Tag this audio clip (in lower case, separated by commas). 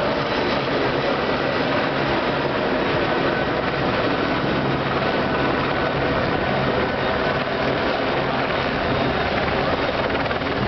boat, ship, speedboat